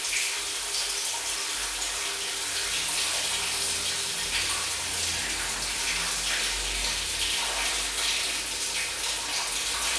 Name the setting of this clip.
restroom